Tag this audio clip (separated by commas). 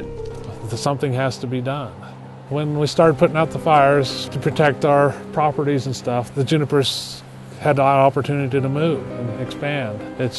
Speech, Music